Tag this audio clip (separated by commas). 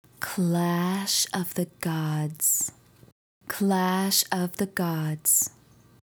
Female speech, Human voice, Speech